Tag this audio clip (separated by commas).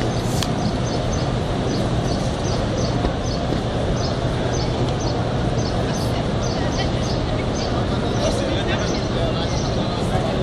Speech